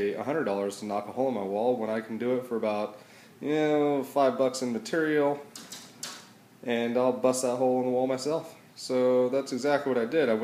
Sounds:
speech

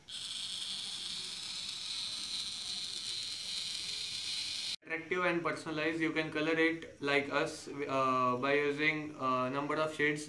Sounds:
speech, inside a small room

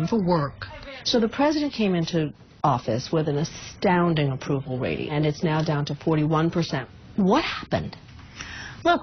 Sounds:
speech

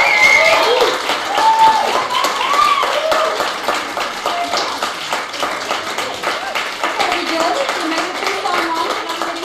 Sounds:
speech, clapping

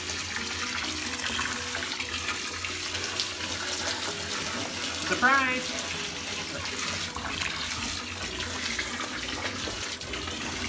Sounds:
toilet flushing

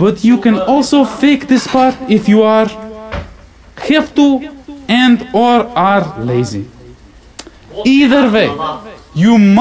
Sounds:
man speaking, speech

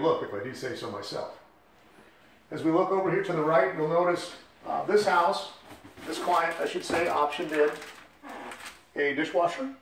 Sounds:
speech, inside a small room

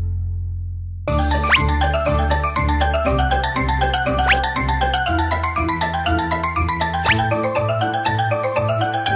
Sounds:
music

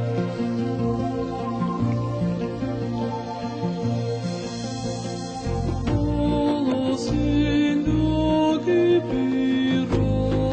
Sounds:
soul music, music

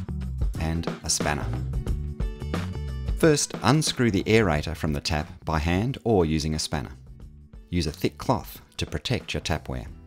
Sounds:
speech, music

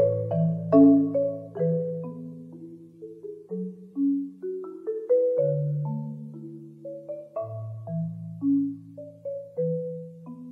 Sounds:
marimba, glockenspiel, mallet percussion, playing marimba

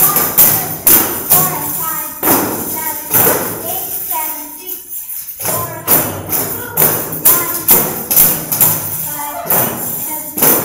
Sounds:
speech, music, tambourine

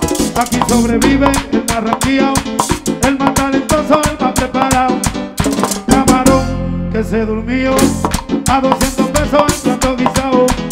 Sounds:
playing guiro

